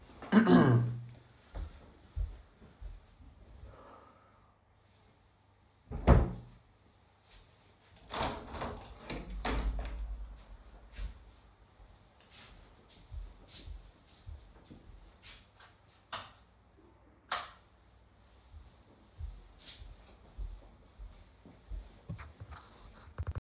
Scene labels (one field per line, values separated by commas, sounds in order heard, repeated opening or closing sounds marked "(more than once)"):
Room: bedroom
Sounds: footsteps, wardrobe or drawer, window, light switch